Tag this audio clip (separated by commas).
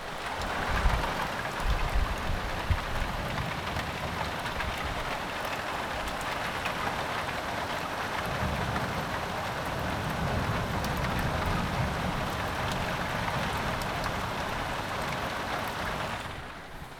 Rain, Water